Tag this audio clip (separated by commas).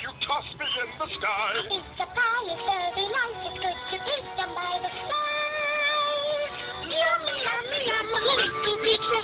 Male singing, Music